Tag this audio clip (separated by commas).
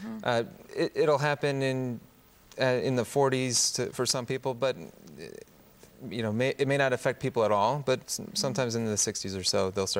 Speech